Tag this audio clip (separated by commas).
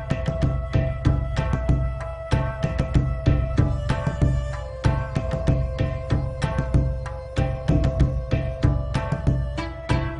Music